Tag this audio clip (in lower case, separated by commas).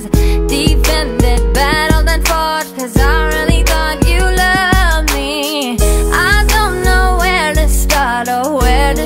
music, blues